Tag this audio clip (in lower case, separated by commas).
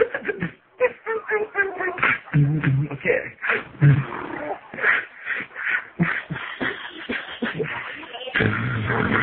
beatboxing, vocal music, speech